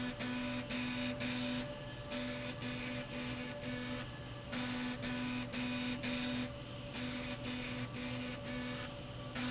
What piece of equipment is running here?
slide rail